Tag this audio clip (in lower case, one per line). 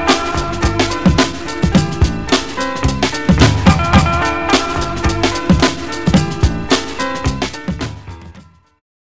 music